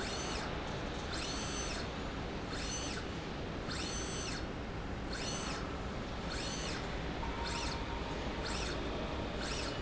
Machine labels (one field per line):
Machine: slide rail